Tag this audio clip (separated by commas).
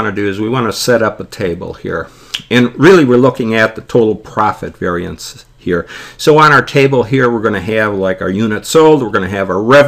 Speech